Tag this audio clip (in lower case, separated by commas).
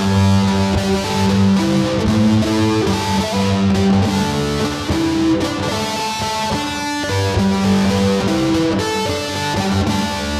fiddle, music, musical instrument